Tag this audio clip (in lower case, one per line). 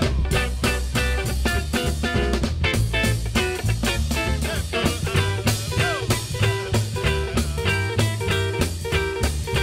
music